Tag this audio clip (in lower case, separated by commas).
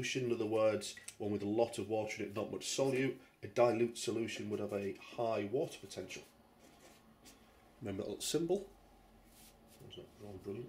speech